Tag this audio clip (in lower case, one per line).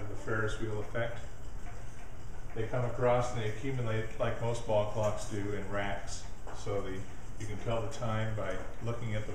speech